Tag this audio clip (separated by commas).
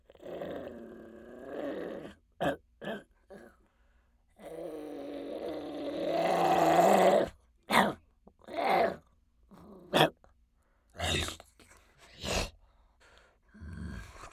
Growling, Animal